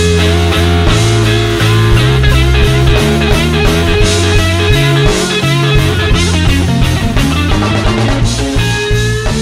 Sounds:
blues
punk rock

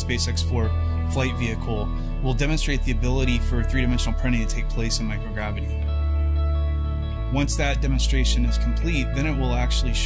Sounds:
music
speech

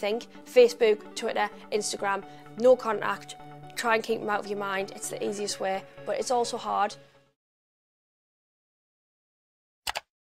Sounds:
music
inside a small room
speech

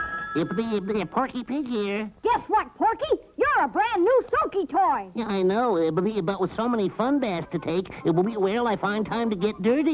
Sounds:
music
speech

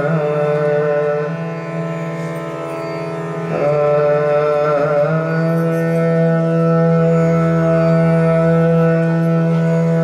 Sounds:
traditional music
music

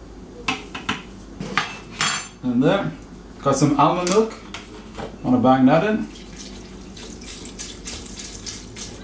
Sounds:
speech
inside a small room

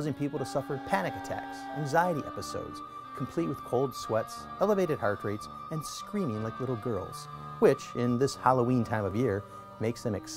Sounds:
speech
music

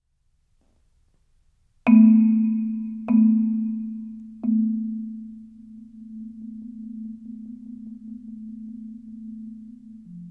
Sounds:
playing marimba
percussion
musical instrument
xylophone
music

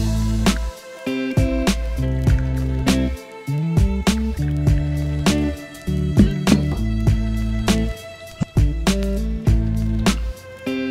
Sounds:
music

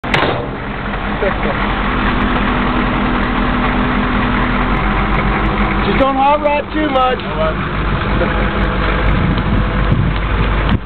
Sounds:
outside, rural or natural
speech
idling
vehicle
truck

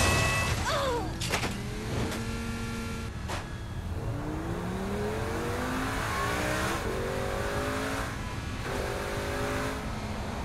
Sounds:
car
vehicle

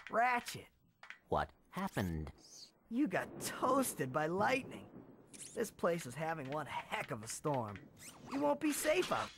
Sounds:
speech

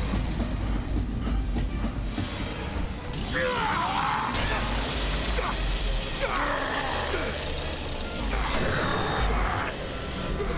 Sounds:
mechanisms

